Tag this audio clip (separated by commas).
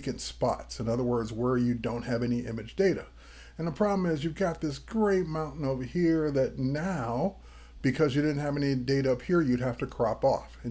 Speech